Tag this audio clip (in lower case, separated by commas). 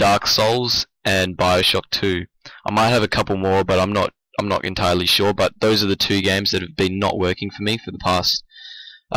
speech